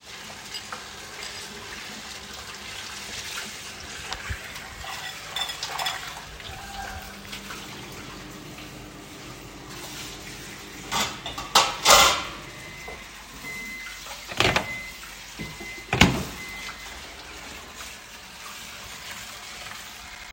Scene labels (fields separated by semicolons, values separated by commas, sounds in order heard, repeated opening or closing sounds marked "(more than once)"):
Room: kitchen; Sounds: running water, cutlery and dishes, microwave